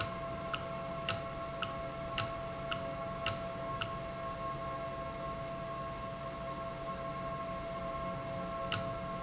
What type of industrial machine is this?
valve